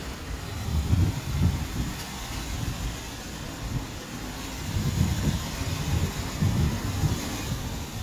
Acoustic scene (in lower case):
street